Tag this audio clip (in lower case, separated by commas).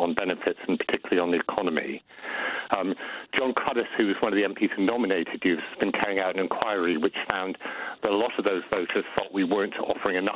radio, speech